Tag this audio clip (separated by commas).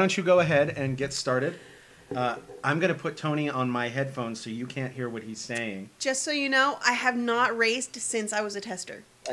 Speech